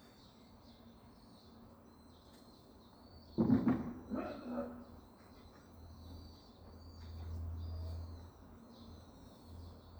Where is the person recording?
in a park